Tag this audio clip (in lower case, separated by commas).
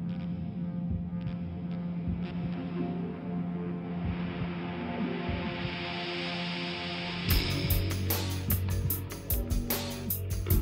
music, scary music